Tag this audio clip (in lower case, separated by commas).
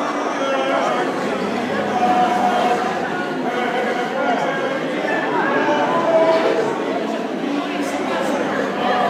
speech